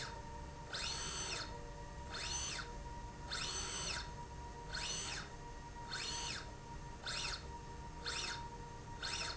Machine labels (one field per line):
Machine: slide rail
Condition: normal